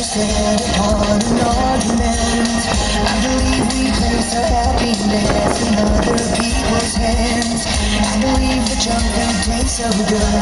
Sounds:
Music, Rock and roll

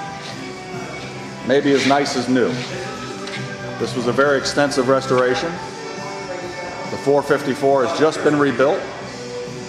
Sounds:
Music, Speech

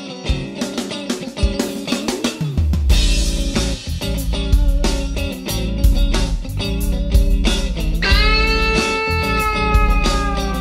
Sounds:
Guitar, Music

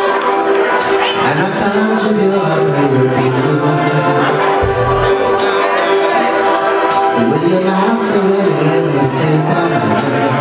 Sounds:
Male singing, Music

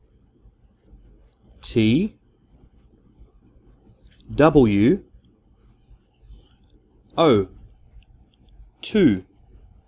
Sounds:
Speech

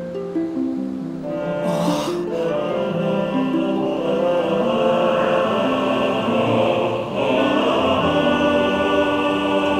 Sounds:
Opera

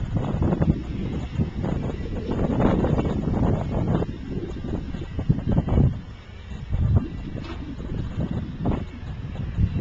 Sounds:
Vehicle

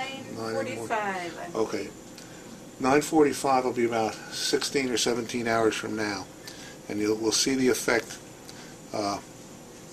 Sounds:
inside a small room, Speech

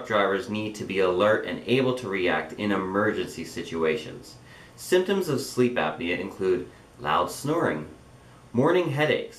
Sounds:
Speech

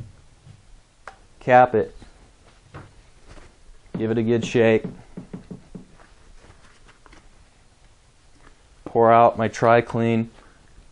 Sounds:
Speech

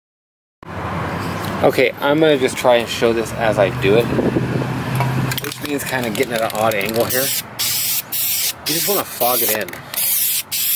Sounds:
Speech, Vehicle, roadway noise

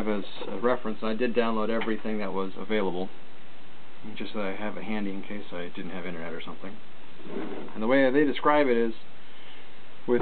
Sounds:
Speech

